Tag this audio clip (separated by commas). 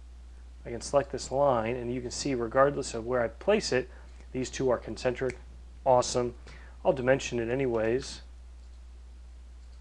Clicking, inside a small room, Speech